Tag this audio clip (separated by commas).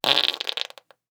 Fart